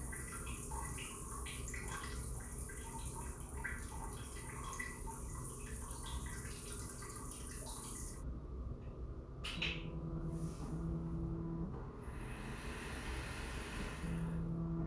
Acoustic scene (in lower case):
restroom